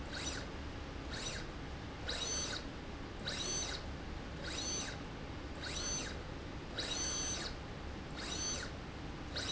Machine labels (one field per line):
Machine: slide rail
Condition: abnormal